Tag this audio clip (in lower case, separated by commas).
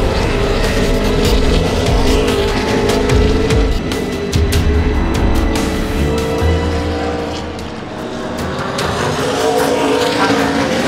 car, vehicle, music, auto racing